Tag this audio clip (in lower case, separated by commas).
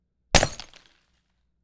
glass, shatter